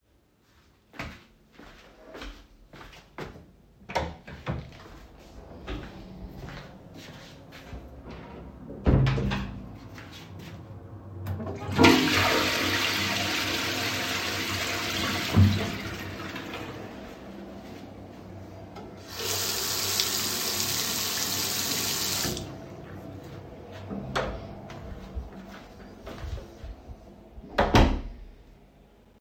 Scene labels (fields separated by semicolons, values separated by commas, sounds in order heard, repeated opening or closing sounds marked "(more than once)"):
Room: living room, hallway, bathroom; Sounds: footsteps, door (more than once), toilet flushing, running water